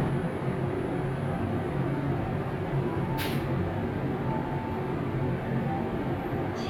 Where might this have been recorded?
in an elevator